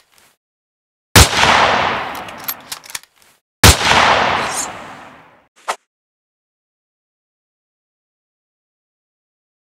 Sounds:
bang

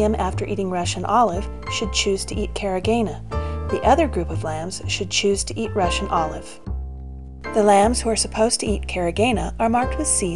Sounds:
speech
music

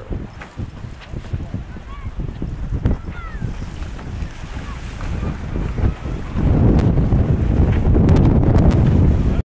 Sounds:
speech

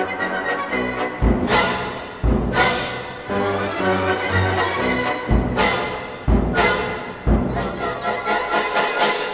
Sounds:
timpani
music

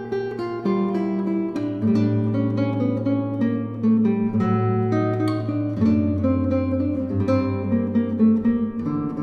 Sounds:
music
strum
guitar
electric guitar
musical instrument
plucked string instrument
acoustic guitar

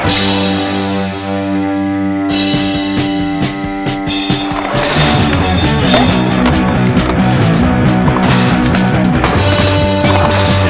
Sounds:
music

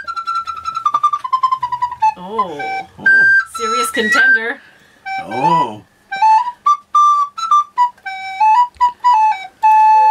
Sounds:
inside a small room
music
speech

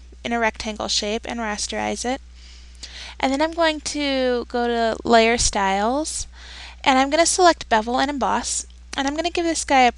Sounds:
speech

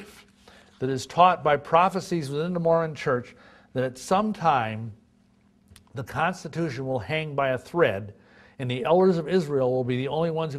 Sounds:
speech

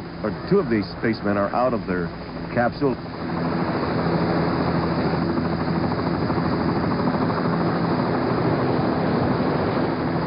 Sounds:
vehicle
speech

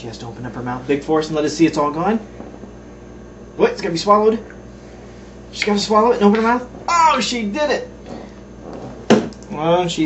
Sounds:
speech

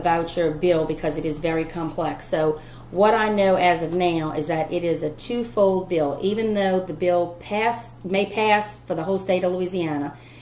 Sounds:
speech

